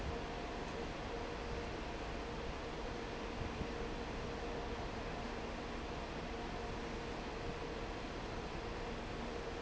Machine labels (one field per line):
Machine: fan